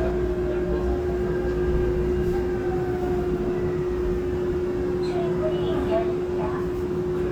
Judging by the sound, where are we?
on a subway train